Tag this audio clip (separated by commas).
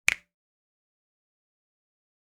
Hands, Finger snapping